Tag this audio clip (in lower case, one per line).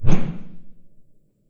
whoosh